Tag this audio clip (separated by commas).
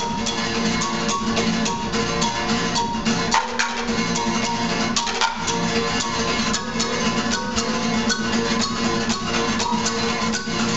Percussion